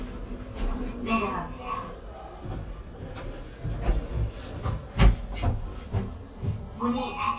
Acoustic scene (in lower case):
elevator